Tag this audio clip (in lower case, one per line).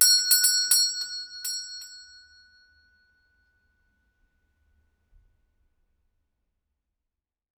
doorbell
alarm
door
domestic sounds